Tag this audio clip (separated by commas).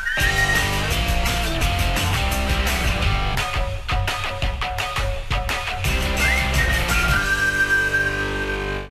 Music